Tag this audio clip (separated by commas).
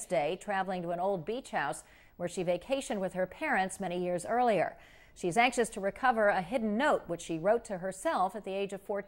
Speech